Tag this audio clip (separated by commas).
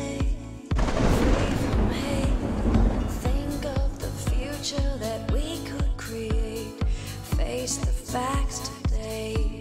Electronica, Music